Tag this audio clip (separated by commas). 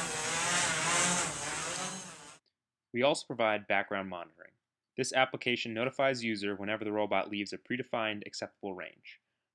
Speech, Tools